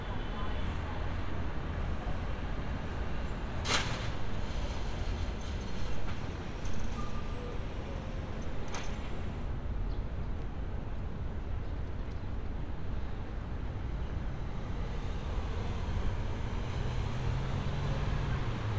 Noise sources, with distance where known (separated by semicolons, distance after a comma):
engine of unclear size